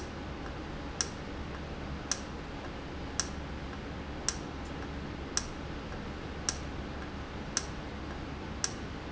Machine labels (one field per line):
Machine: valve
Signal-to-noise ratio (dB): -6 dB